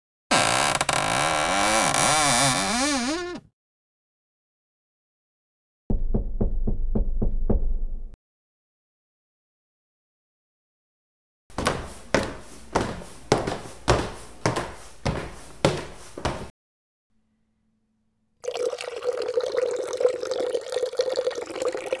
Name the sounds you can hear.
wardrobe or drawer, footsteps, running water